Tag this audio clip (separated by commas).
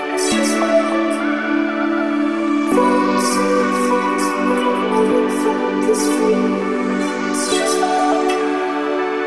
Electronic music, Music, Dubstep